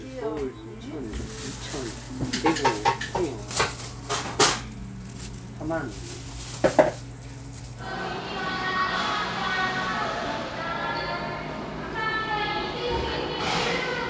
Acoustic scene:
cafe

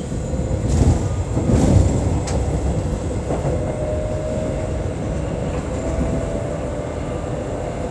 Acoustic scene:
subway train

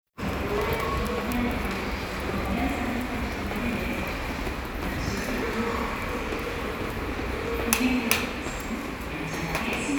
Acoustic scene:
subway station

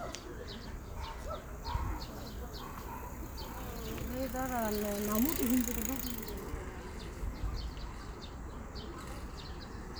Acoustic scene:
park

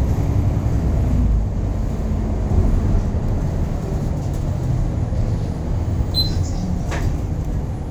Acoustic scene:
bus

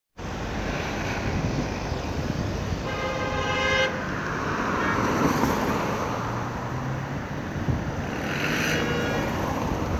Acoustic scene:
street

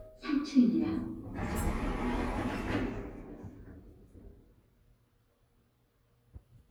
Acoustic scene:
elevator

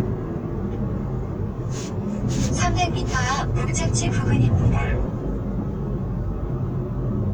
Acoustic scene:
car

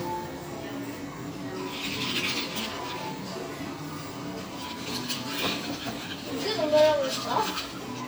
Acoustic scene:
cafe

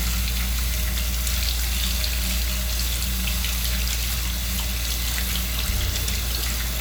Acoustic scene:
restroom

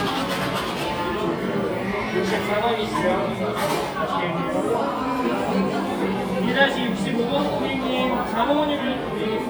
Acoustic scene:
cafe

